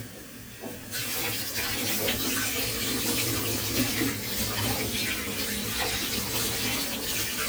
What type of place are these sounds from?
kitchen